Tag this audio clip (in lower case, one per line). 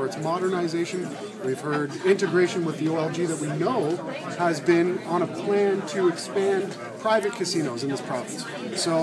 speech